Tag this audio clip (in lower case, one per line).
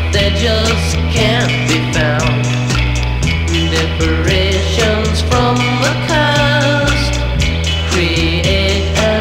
music